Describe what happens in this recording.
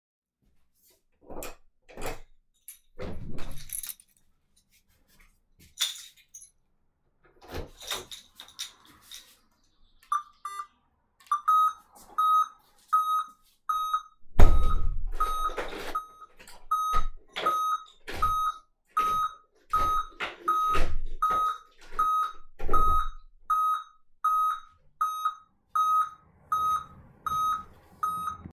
I unlocked the door. I took the keys. I opened the door. I activated the alarm system. I closed the door and looked it.